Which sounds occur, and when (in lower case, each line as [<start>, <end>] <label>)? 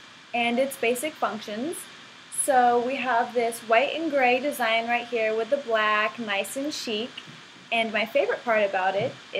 [0.00, 9.35] mechanisms
[0.34, 1.86] female speech
[2.35, 7.25] female speech
[7.27, 7.41] thunk
[7.70, 9.15] female speech
[8.97, 9.13] thunk
[9.33, 9.35] female speech